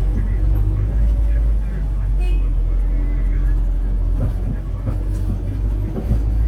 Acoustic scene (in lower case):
bus